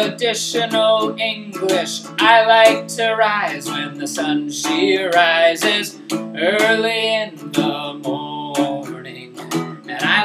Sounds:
male singing
music

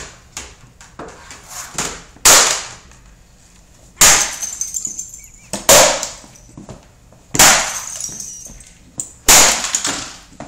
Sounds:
smash

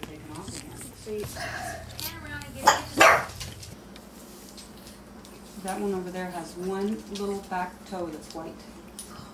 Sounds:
animal
dog
domestic animals
speech

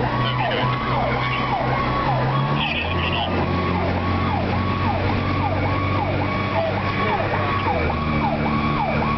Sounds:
vehicle
engine
speech
medium engine (mid frequency)

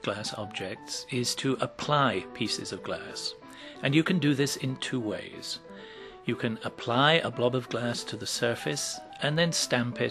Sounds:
speech
music

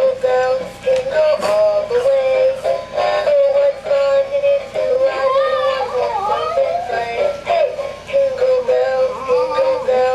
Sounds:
music

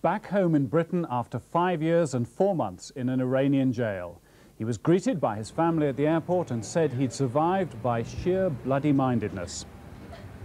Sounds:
speech

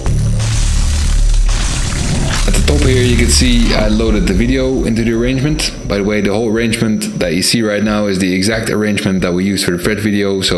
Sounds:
speech
music

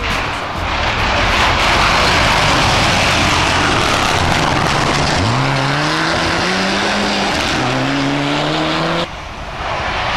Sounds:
outside, rural or natural
race car
car
vehicle

